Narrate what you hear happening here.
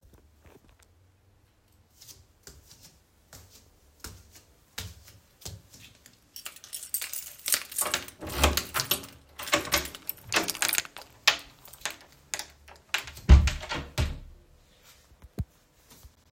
I walked to the door, used my keys to open it, opened the door, and closed it.